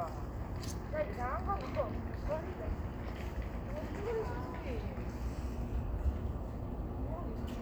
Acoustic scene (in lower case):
street